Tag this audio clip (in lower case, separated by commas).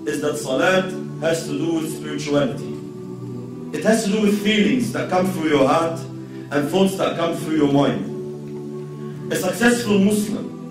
music, man speaking, speech